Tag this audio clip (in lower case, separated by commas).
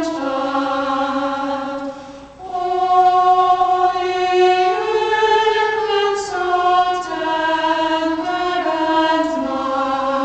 female singing, music, choir